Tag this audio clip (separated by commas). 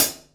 Hi-hat, Musical instrument, Percussion, Cymbal, Music